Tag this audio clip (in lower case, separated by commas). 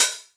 cymbal, hi-hat, percussion, music, musical instrument